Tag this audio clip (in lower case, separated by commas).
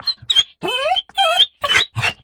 pets, animal, dog